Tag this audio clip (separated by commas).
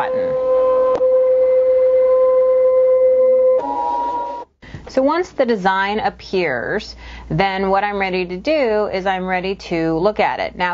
Speech